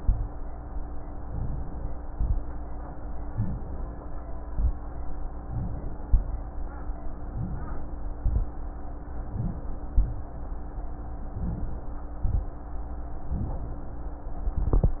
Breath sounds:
1.25-2.05 s: inhalation
2.09-2.52 s: exhalation
3.30-3.91 s: inhalation
4.50-4.90 s: exhalation
5.45-6.05 s: inhalation
6.09-6.55 s: exhalation
7.32-7.99 s: inhalation
8.23-8.71 s: exhalation
9.26-9.89 s: inhalation
9.92-10.40 s: exhalation
11.27-11.94 s: inhalation
12.18-12.56 s: exhalation
13.21-13.87 s: inhalation

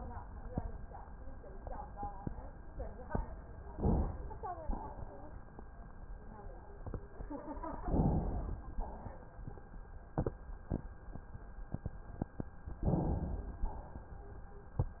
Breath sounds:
3.70-4.61 s: inhalation
4.73-5.56 s: exhalation
7.84-8.75 s: inhalation
8.75-9.45 s: exhalation
12.88-13.64 s: inhalation
13.64-14.31 s: exhalation

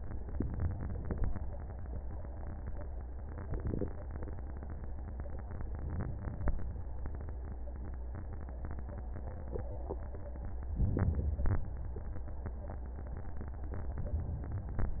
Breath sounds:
10.79-11.69 s: inhalation

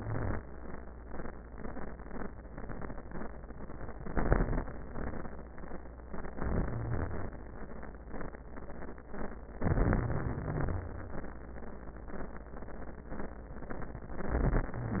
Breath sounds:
0.00-0.40 s: inhalation
0.00-0.40 s: wheeze
6.32-7.31 s: inhalation
6.32-7.31 s: wheeze
9.61-11.16 s: wheeze
9.65-10.90 s: inhalation
14.15-14.74 s: inhalation

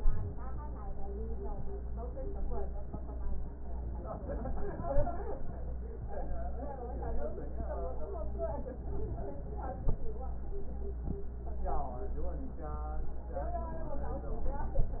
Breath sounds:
8.74-9.82 s: inhalation

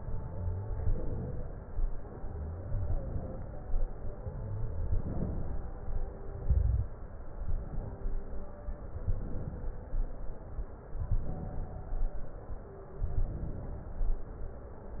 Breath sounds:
0.00-0.76 s: exhalation
0.00-0.77 s: crackles
0.82-1.57 s: inhalation
1.88-2.65 s: crackles
1.90-2.66 s: exhalation
2.68-3.44 s: inhalation
4.12-4.89 s: exhalation
4.12-4.89 s: crackles
4.90-5.66 s: inhalation
5.74-6.40 s: exhalation
6.48-6.88 s: crackles
6.50-6.89 s: inhalation
7.45-8.21 s: inhalation
9.03-9.78 s: inhalation
11.10-11.86 s: inhalation
13.21-13.96 s: inhalation

